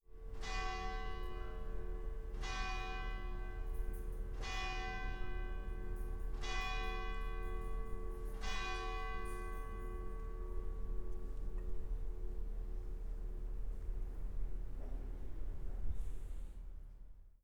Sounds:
bell
church bell

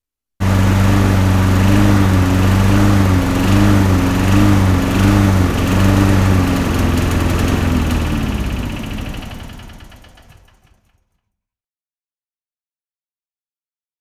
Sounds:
engine

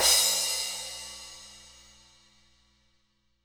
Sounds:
crash cymbal
cymbal
musical instrument
percussion
music

